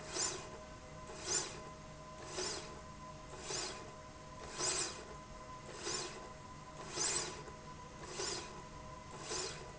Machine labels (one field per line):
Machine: slide rail